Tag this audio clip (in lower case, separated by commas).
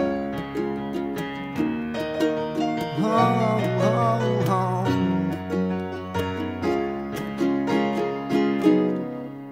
musical instrument, ukulele, plucked string instrument, music, guitar